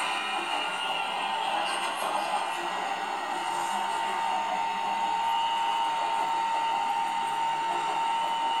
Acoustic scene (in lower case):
subway train